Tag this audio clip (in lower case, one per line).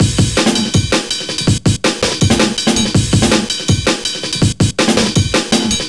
drum kit
music
musical instrument
percussion